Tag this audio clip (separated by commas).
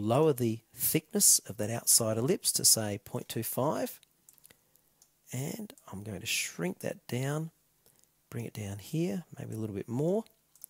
Speech, inside a small room